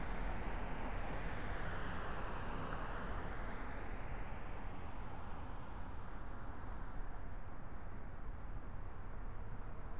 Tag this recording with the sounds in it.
medium-sounding engine